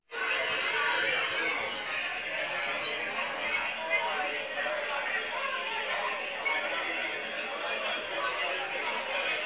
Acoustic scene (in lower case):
crowded indoor space